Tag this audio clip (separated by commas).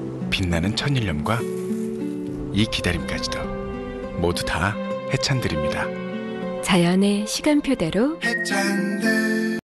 Music, Speech